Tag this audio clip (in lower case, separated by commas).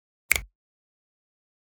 finger snapping, hands